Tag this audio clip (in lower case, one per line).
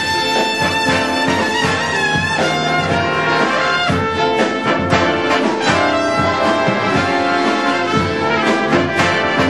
music